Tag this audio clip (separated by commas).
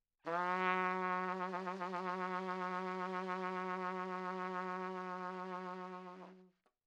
Brass instrument, Trumpet, Musical instrument, Music